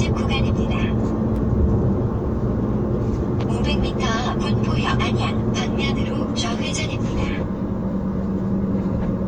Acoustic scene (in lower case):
car